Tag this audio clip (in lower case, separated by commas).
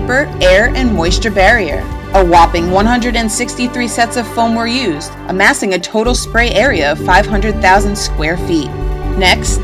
speech, music